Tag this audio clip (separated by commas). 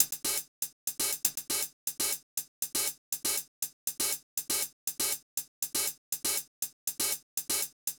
Drum kit, Music, Percussion, Musical instrument